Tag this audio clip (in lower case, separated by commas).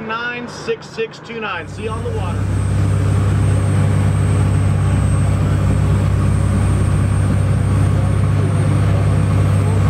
speedboat, boat